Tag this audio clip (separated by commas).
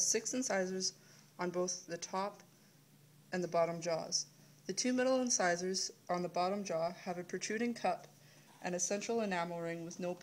Speech